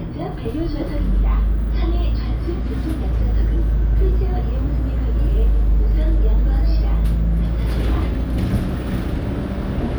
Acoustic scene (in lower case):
bus